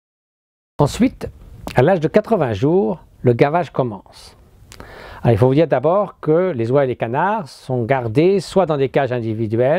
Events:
0.7s-9.7s: wind
0.8s-1.3s: male speech
1.2s-1.2s: tick
1.6s-1.7s: tick
1.7s-3.0s: male speech
3.2s-4.0s: male speech
4.1s-4.4s: breathing
4.7s-4.8s: tick
4.8s-5.2s: breathing
5.2s-6.1s: male speech
6.2s-9.7s: male speech

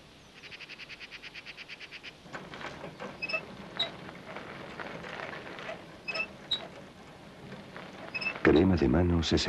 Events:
0.0s-0.4s: tweet
0.0s-9.4s: wind
0.3s-2.0s: bird vocalization
2.3s-2.7s: generic impact sounds
2.3s-9.4s: bicycle
2.7s-3.0s: tweet
3.0s-3.2s: generic impact sounds
3.2s-3.4s: brief tone
3.7s-3.9s: brief tone
4.2s-5.7s: rustle
6.0s-6.2s: brief tone
6.5s-6.8s: rustle
6.5s-6.6s: brief tone
7.6s-8.4s: rustle
8.1s-8.3s: brief tone
8.4s-9.4s: male speech
8.5s-8.6s: brief tone

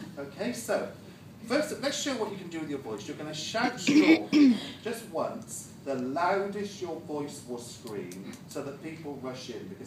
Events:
0.0s-1.0s: man speaking
0.0s-9.8s: mechanisms
1.0s-1.3s: breathing
1.5s-3.8s: man speaking
3.9s-4.6s: throat clearing
4.6s-4.8s: breathing
4.9s-5.8s: man speaking
5.4s-5.5s: clicking
5.9s-9.8s: man speaking
6.0s-6.1s: clicking
7.9s-8.0s: clicking
8.1s-8.2s: clicking
8.4s-8.4s: clicking
9.0s-9.0s: clicking

